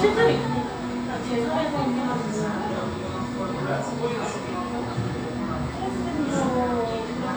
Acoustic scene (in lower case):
cafe